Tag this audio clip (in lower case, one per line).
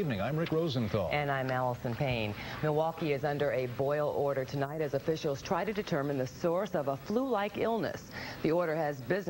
speech